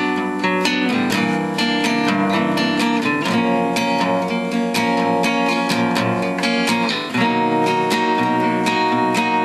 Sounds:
guitar
music
acoustic guitar
plucked string instrument
strum
musical instrument

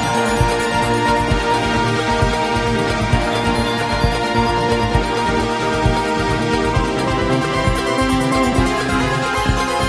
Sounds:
video game music

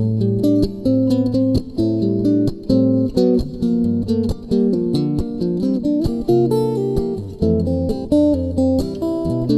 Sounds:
musical instrument
plucked string instrument
music
strum
guitar

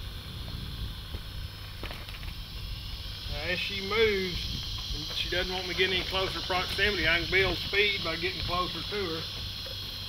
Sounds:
speech

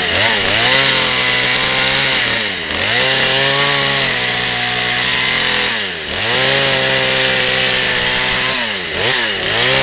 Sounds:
chainsaw
outside, rural or natural

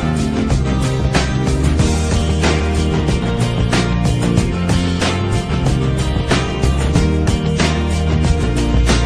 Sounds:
music
rhythm and blues

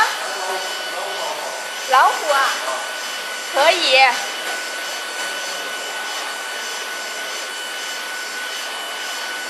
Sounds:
speech
printer

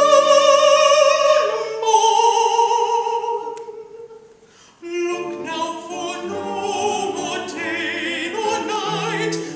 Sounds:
guitar
acoustic guitar
music
plucked string instrument
musical instrument

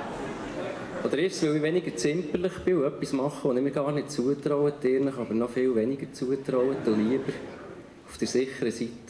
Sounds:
speech

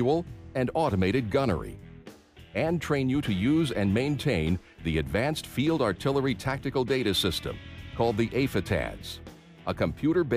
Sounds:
speech
music

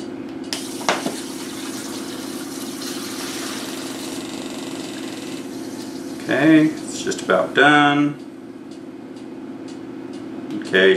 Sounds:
speech
male speech

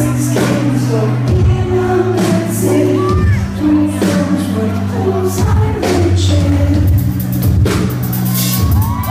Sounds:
music

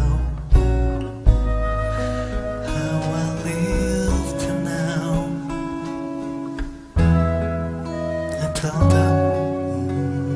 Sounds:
music
singing

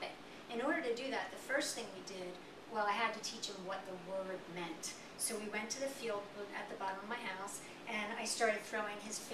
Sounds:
speech

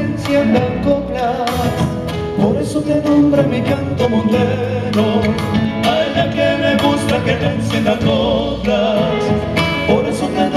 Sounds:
music

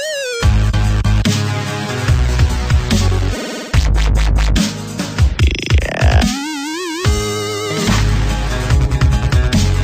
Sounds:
music

